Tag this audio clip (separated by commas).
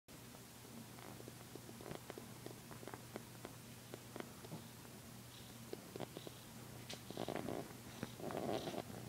inside a small room